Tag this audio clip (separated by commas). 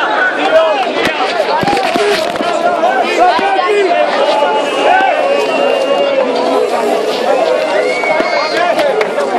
Speech, Crowd